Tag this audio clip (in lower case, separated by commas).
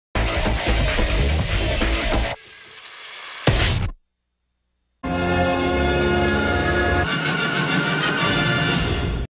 television, music